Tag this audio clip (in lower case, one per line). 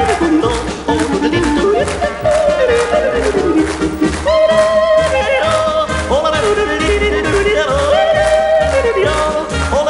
yodelling